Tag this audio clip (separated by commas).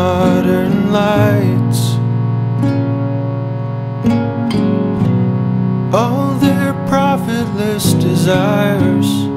Music, Effects unit